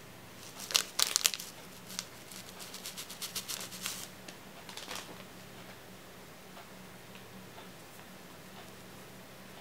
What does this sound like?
Some plastic crinkling loudly followed by something being placed on a surface